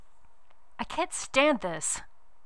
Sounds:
woman speaking, speech, human voice

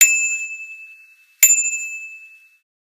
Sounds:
bicycle, vehicle, bicycle bell, bell, alarm

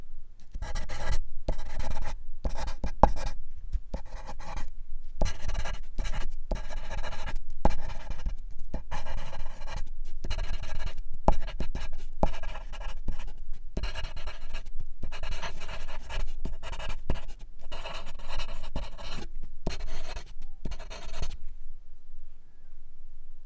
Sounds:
domestic sounds, writing

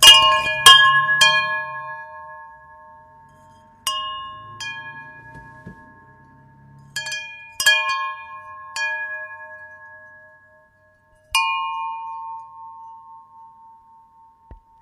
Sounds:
bell, chime

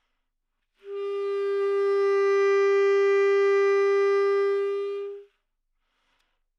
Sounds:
wind instrument, music, musical instrument

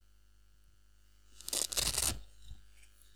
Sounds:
domestic sounds

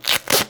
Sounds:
domestic sounds, duct tape

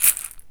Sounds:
percussion, music, musical instrument, rattle (instrument)

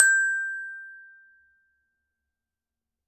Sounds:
mallet percussion, percussion, glockenspiel, music, musical instrument

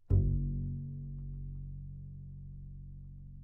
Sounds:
music, musical instrument, bowed string instrument

